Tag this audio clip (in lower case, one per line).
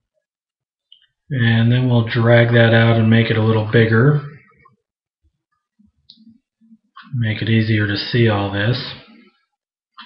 speech